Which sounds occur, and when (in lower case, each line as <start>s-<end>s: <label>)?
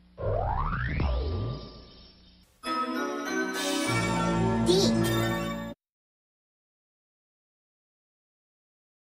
0.0s-2.6s: background noise
0.2s-1.6s: sound effect
2.6s-5.8s: music